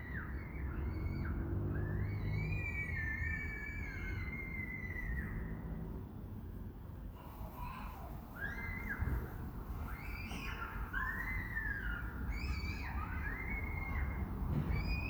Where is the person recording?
in a residential area